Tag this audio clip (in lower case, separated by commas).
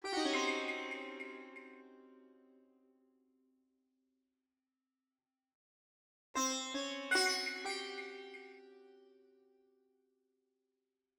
musical instrument, plucked string instrument, music